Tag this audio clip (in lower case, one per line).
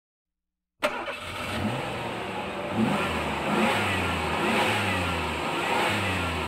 vroom
sound effect